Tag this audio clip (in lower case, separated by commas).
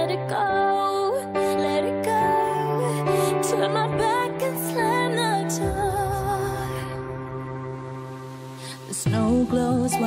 music